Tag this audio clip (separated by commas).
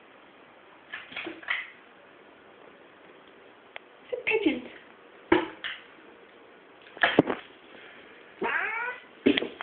pets, Animal, Speech, Cat